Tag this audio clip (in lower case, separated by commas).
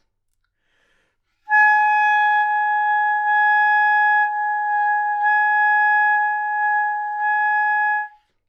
wind instrument, music, musical instrument